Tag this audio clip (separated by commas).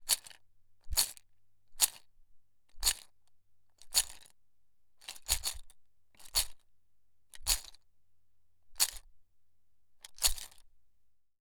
Rattle